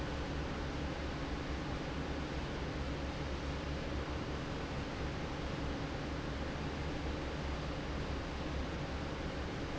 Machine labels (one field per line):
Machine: fan